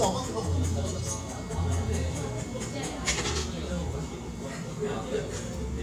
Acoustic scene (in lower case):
cafe